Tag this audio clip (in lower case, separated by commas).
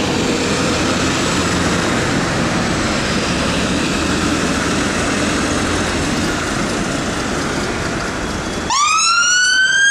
engine